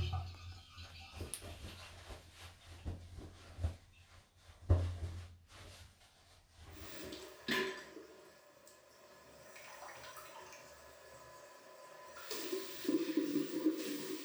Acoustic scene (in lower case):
restroom